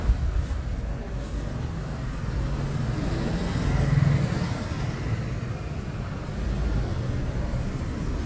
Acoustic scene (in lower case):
residential area